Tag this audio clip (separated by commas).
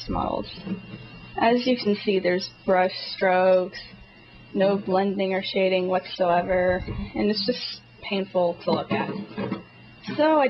Speech